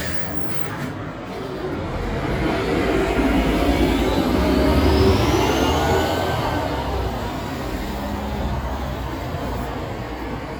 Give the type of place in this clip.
street